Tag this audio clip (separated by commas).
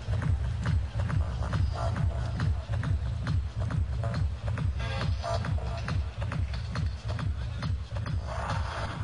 Music